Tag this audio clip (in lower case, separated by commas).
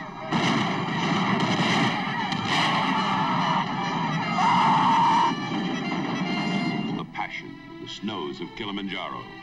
music, whoop, speech